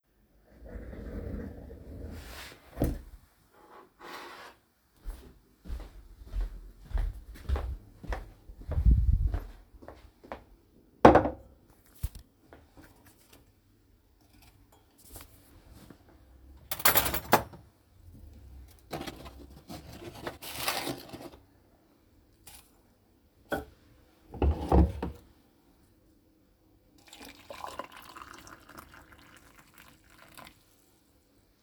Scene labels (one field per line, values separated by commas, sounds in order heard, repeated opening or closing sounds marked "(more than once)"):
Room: office, kitchen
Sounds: footsteps, cutlery and dishes